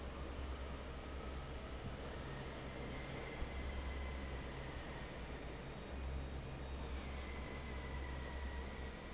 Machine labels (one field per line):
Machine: fan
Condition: normal